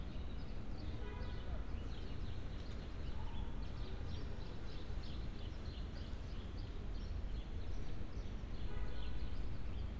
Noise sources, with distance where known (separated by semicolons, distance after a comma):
car horn, far